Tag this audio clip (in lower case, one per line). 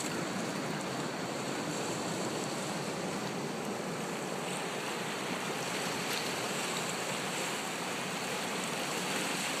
wind